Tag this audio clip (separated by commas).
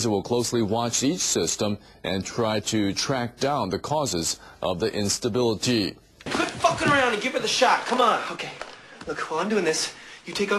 Speech